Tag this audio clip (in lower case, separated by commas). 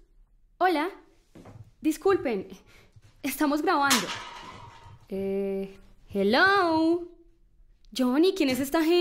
speech